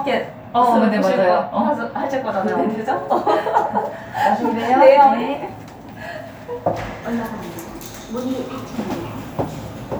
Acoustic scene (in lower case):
elevator